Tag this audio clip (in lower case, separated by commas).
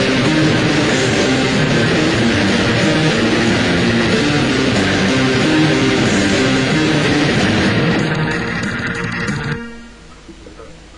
rock music, music, heavy metal